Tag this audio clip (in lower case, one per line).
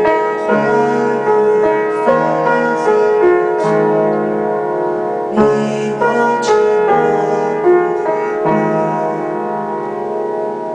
male singing
music